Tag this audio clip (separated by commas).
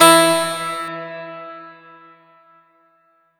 Keyboard (musical), Music, Musical instrument